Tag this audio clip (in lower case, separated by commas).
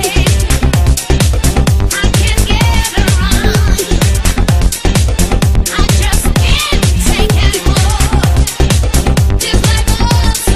dance music, electronic music, music